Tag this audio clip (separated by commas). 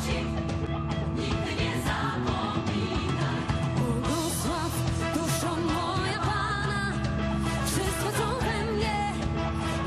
Music